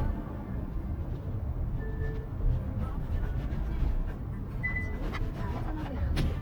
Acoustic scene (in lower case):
car